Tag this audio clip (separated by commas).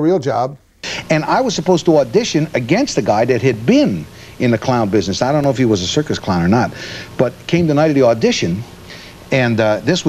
Speech